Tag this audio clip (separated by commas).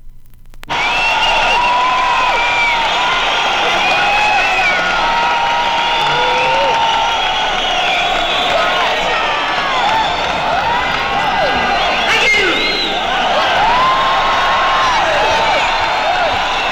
Human group actions, Crowd